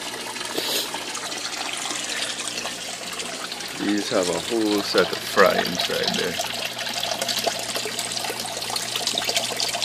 Water is running and gurgling, and an adult male speaks